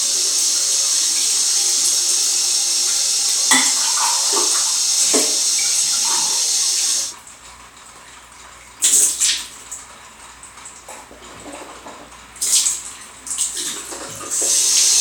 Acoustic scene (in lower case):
restroom